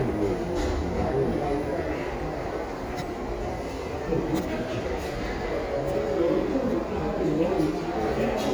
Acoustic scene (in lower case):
crowded indoor space